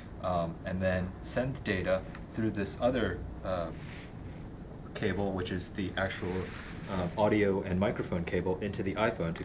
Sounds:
speech

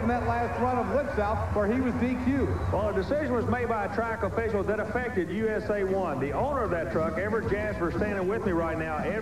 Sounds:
speech, music

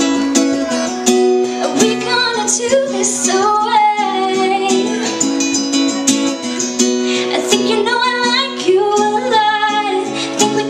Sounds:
female singing, music

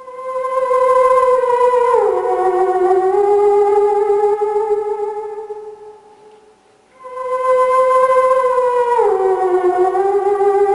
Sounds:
music

